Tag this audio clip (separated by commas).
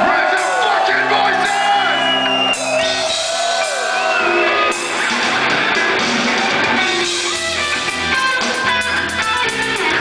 Music, Speech